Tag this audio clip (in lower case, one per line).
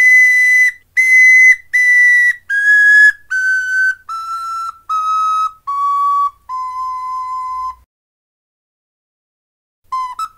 whistle